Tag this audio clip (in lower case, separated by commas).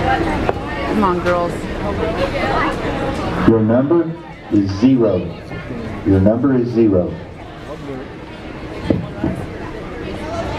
speech, clip-clop